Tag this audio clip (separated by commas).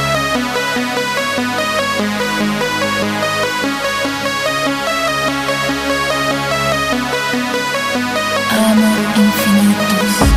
Techno, Music